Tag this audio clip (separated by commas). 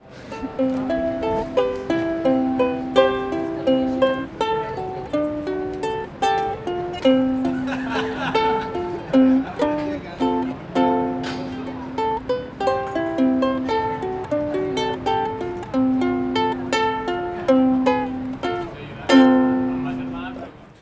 Musical instrument, Plucked string instrument, Music